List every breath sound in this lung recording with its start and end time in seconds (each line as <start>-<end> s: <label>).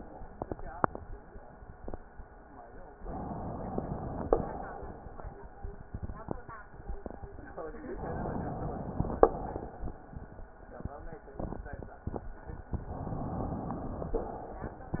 3.04-4.25 s: inhalation
4.25-5.22 s: exhalation
7.95-9.19 s: inhalation
9.19-10.11 s: exhalation
12.81-14.15 s: inhalation
14.15-15.00 s: exhalation